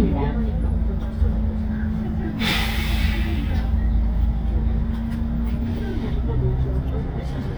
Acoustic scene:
bus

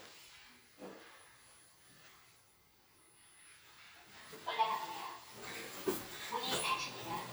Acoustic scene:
elevator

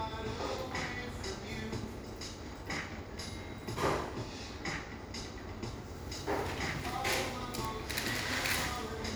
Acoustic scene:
cafe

